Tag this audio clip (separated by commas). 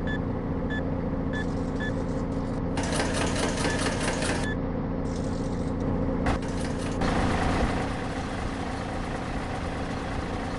Bus, Vehicle